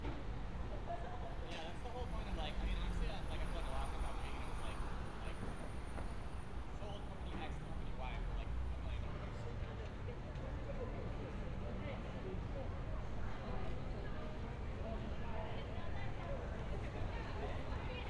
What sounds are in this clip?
person or small group talking